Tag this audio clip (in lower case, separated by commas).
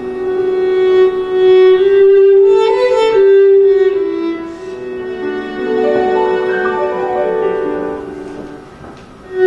jazz, violin, musical instrument, music